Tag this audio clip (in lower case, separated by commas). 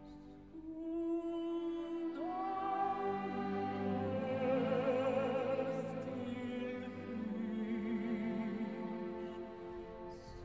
singing, music